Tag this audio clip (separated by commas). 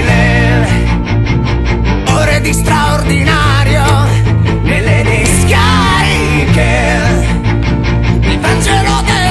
Music, Punk rock